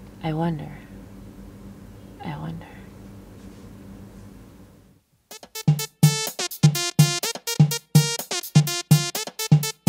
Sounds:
music
drum machine
speech

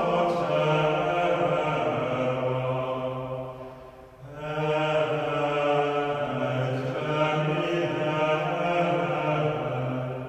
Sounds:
mantra

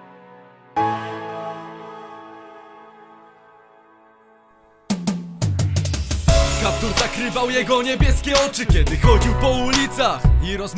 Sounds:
music

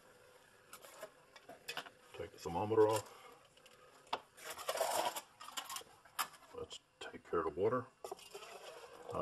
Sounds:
speech
boiling

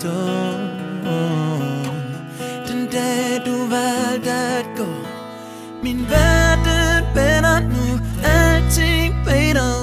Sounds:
music

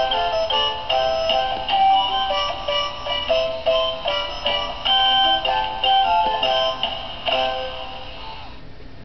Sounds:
music

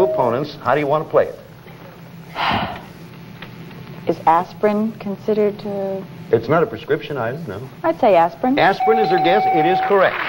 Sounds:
speech
inside a large room or hall

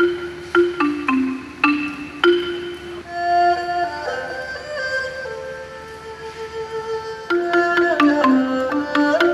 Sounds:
playing erhu

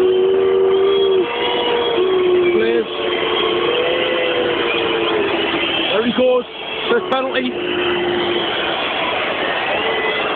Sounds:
speech

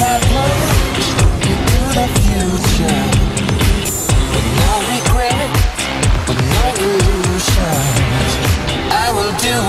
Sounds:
music

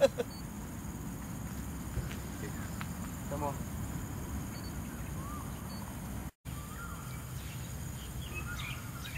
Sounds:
speech

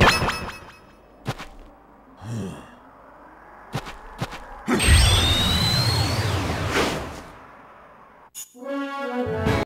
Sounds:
music

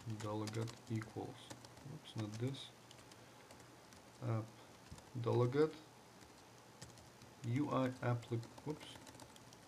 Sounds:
speech
computer keyboard
typing

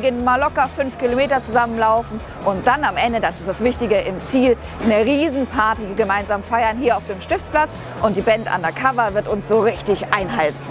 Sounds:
music
speech
outside, urban or man-made

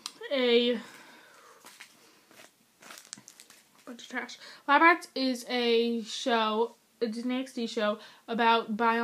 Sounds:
speech

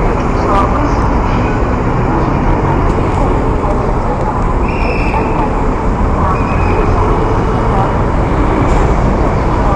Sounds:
vehicle
motor vehicle (road)

